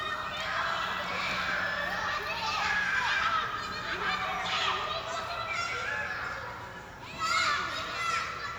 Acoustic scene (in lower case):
park